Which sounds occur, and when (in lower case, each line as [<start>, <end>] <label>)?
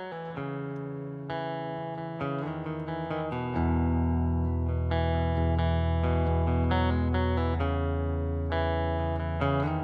[0.00, 9.83] chorus effect
[0.00, 9.83] music